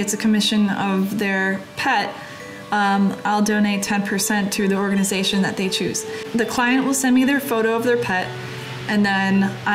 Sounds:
Speech, Music

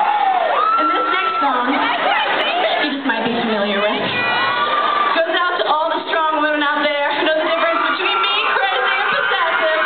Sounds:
Speech

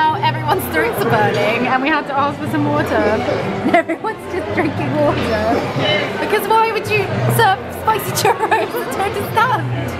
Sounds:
Speech, inside a public space

